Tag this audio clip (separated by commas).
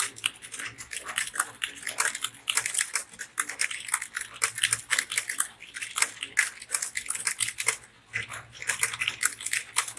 typing on computer keyboard